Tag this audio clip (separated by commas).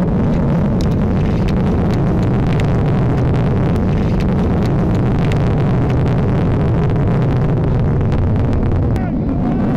missile launch